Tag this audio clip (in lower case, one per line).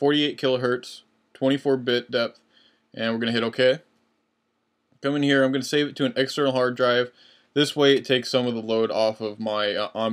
speech